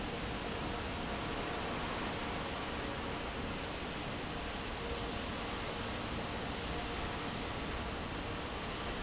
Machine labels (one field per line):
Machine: fan